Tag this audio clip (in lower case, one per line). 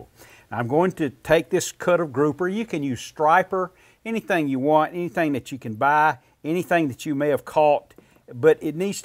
speech